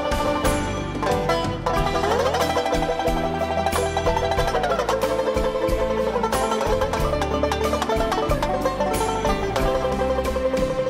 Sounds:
playing zither

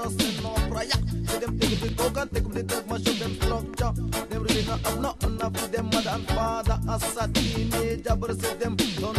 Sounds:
exciting music
music

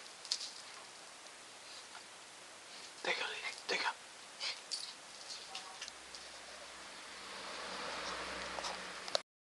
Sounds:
speech

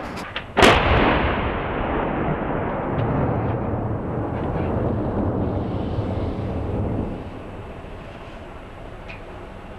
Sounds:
artillery fire
gunfire

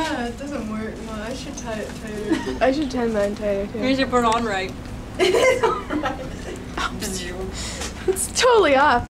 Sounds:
speech

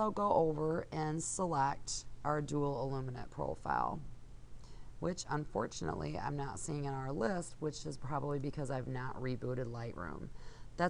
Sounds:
speech

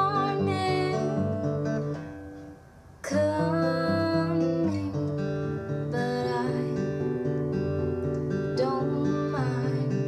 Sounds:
music

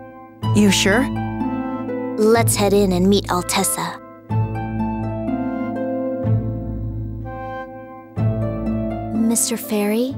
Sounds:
music
speech

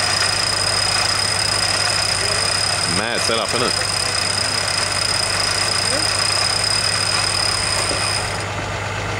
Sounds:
vehicle
truck
speech

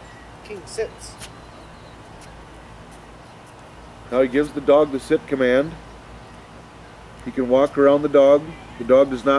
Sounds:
speech

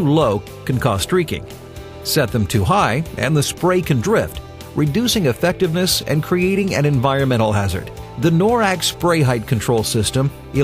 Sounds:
music
speech

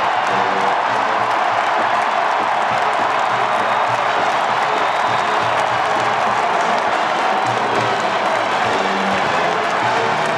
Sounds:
people marching

